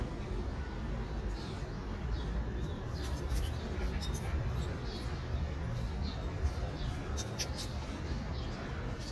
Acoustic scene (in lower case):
park